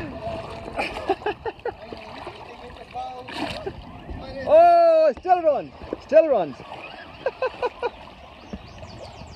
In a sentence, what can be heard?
Person laughing, sound of water moving, followed by a man speaking